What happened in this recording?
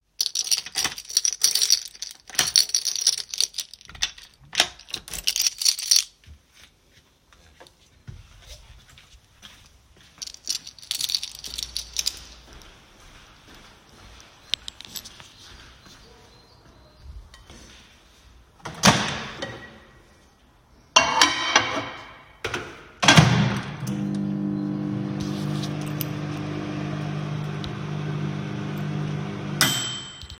I walked to the kitchen with my keychain, placed a dish in the microwave, and the microwave started running.